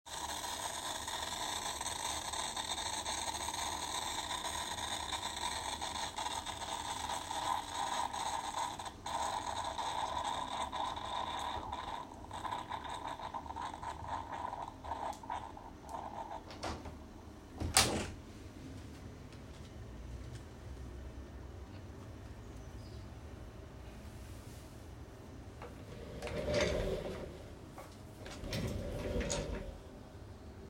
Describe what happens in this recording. I was making coffee with coffee machine, then opened the window. After that I moved my desk chair and sat on it.